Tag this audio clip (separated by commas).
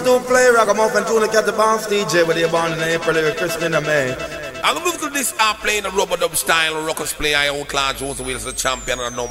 Music